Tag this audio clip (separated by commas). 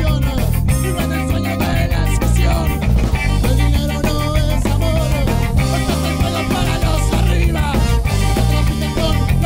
Punk rock, Music